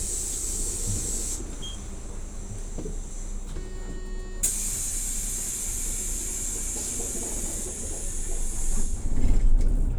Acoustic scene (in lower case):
bus